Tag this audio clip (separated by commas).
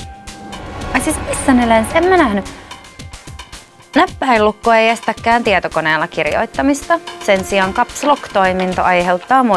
Speech, Music